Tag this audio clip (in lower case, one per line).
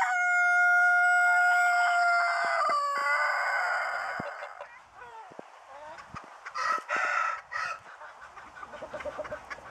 duck
goose
bird